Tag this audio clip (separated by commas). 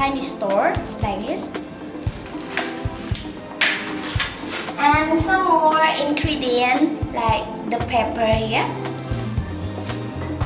Speech, Music